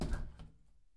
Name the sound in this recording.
window closing